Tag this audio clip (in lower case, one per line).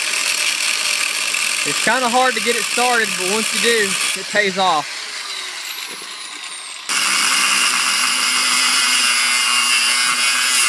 speech